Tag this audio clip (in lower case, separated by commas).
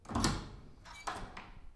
squeak